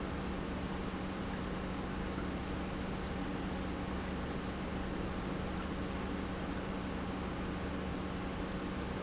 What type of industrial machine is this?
pump